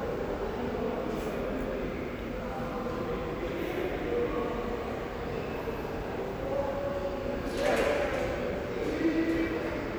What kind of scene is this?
subway station